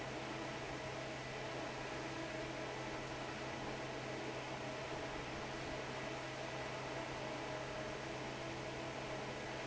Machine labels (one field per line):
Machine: fan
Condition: normal